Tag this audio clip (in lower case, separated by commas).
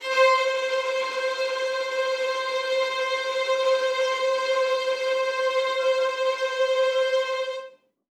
musical instrument, music, bowed string instrument